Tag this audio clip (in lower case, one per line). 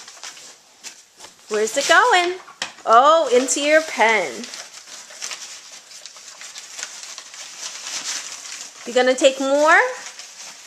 speech